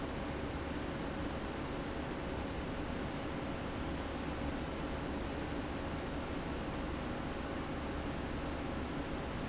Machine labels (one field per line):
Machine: fan